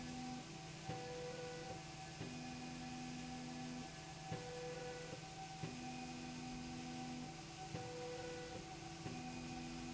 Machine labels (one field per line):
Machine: slide rail